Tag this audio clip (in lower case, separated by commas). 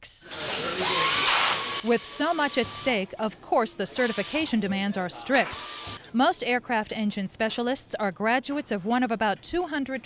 speech